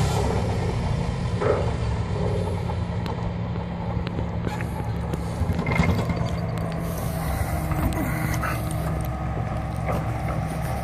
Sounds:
vehicle

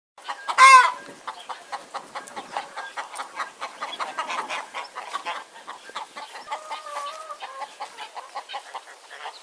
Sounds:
chicken clucking

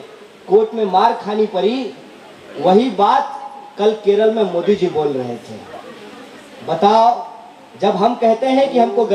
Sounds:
monologue
speech
man speaking

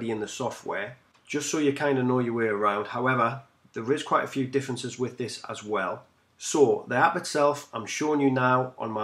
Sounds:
speech

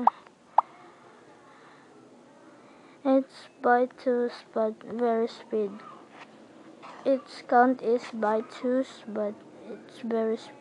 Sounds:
inside a small room
speech

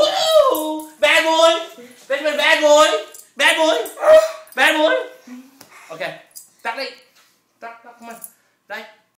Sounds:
animal
pets
speech

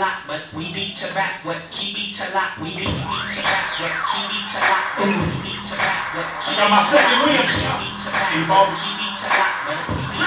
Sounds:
music
speech

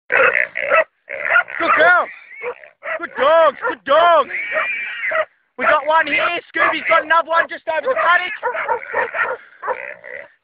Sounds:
speech
dog
pig
animal

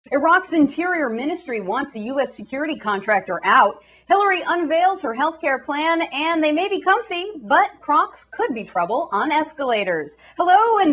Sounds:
speech

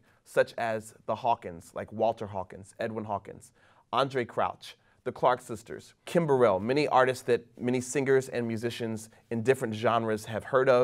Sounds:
speech

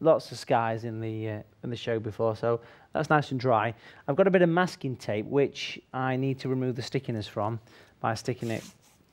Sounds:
speech

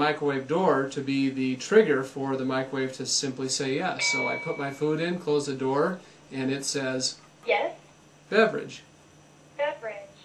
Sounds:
speech

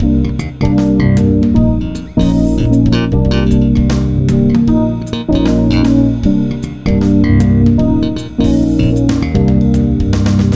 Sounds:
music
jazz

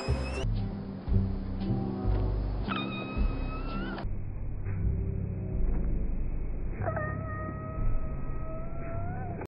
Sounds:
music

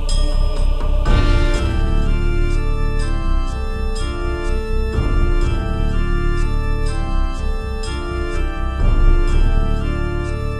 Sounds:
music

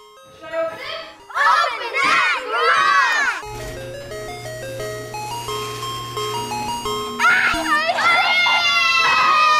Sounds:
ice cream truck

